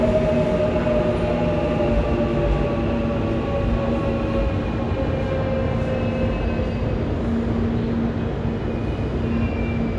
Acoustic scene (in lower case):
subway station